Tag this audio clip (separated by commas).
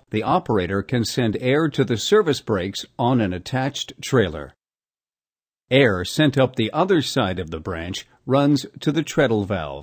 Speech